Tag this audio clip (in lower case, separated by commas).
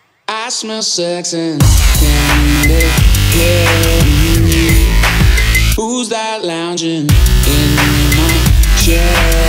electronic music, dubstep, music